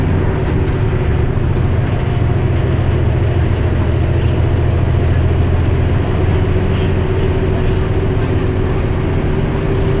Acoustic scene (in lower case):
bus